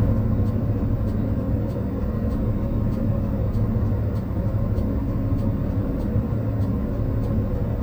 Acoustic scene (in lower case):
bus